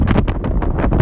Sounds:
wind

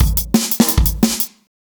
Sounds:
percussion, drum kit, snare drum, drum, music, musical instrument, bass drum

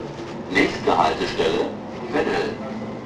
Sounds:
train, vehicle, rail transport

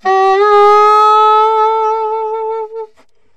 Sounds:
music, musical instrument, wind instrument

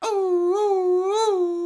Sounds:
dog, domestic animals, animal

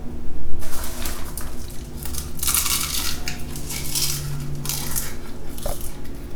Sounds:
mastication

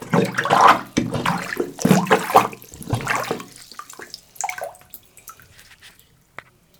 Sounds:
home sounds, sink (filling or washing)

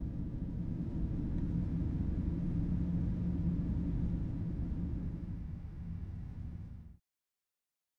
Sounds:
wind

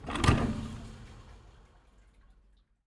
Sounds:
thump

